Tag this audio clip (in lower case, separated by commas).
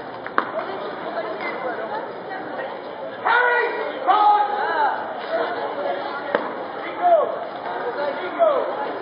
speech